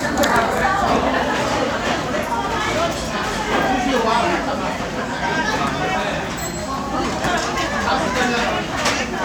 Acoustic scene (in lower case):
crowded indoor space